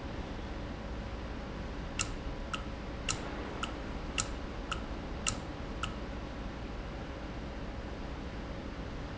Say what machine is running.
valve